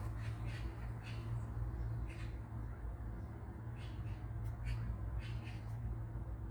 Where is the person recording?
in a park